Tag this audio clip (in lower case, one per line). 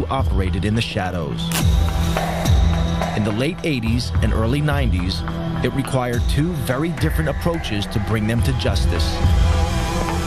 speech
music